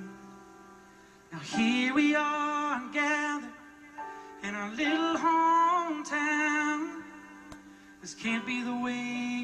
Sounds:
male singing, music

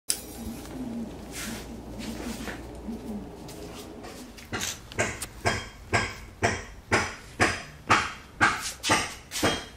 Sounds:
spray

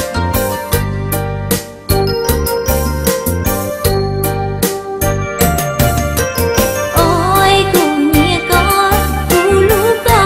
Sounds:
tinkle

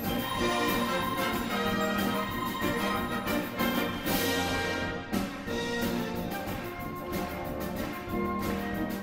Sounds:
orchestra, music

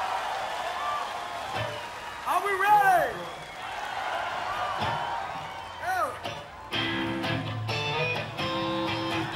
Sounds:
music, speech

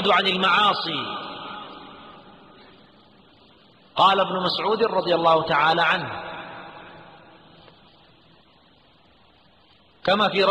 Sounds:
speech

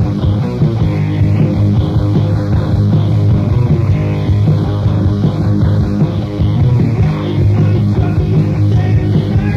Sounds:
music

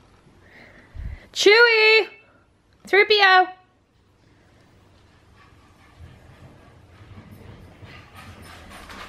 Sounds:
speech

